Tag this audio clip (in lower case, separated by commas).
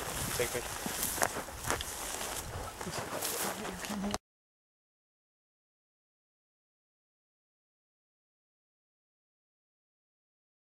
outside, rural or natural, speech